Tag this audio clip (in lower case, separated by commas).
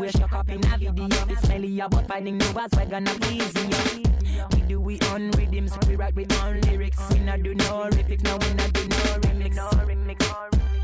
music, hip hop music